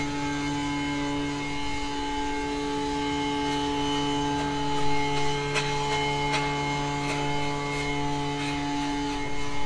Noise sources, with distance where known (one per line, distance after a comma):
unidentified powered saw, near